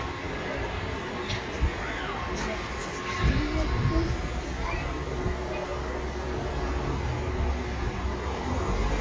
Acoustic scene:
residential area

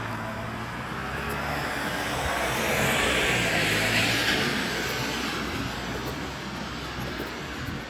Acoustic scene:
street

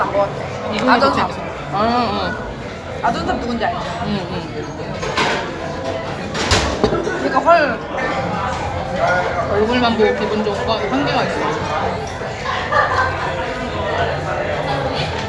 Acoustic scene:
crowded indoor space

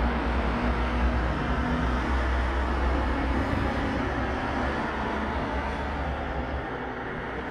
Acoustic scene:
street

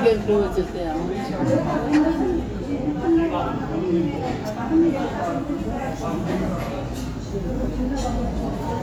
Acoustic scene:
restaurant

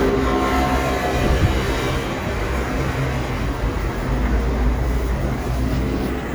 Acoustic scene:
street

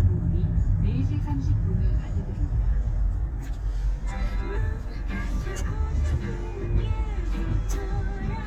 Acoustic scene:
car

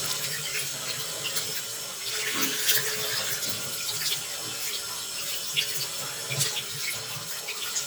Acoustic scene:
restroom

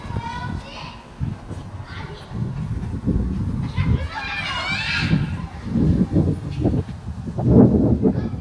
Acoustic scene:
residential area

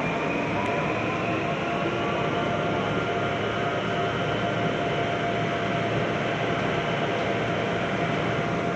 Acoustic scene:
subway train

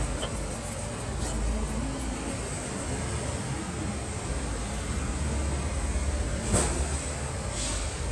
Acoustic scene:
street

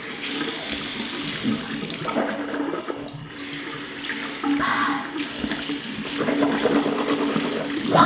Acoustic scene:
restroom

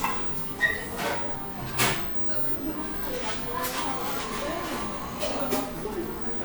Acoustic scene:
cafe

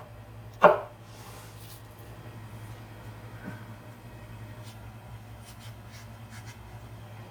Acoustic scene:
kitchen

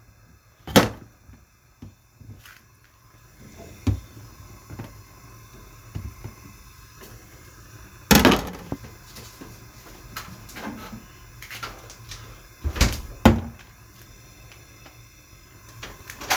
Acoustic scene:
kitchen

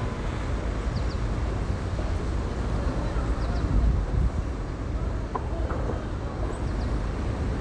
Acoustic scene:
street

